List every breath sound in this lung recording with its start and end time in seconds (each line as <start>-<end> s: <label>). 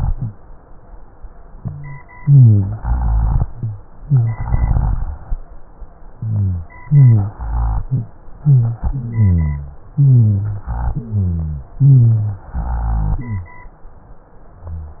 2.18-2.79 s: inhalation
2.18-2.79 s: wheeze
2.77-3.43 s: exhalation
2.77-3.43 s: rhonchi
4.00-4.42 s: inhalation
4.00-4.42 s: wheeze
4.44-5.10 s: exhalation
4.44-5.10 s: rhonchi
6.17-6.68 s: wheeze
6.85-7.36 s: inhalation
6.85-7.36 s: wheeze
7.38-8.12 s: exhalation
7.38-8.12 s: rhonchi
8.39-8.84 s: inhalation
8.39-8.84 s: wheeze
8.90-9.79 s: exhalation
8.90-9.79 s: rhonchi
9.96-10.65 s: inhalation
9.96-10.65 s: wheeze
10.70-11.71 s: exhalation
10.70-11.71 s: rhonchi
11.78-12.47 s: inhalation
11.78-12.47 s: wheeze
12.54-13.55 s: exhalation
12.54-13.55 s: rhonchi